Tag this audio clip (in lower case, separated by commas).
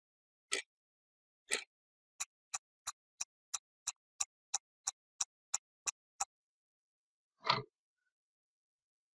sound effect, tick-tock